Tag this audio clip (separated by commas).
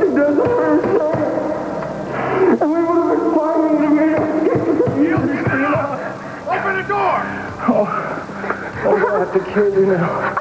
Music, Speech